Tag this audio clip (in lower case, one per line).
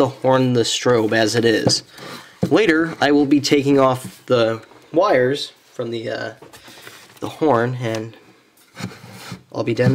speech